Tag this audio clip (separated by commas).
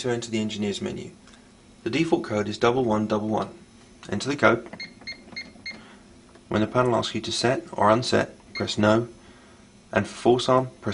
inside a small room, Speech